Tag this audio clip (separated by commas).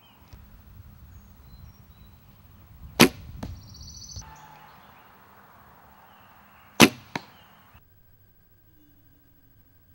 Arrow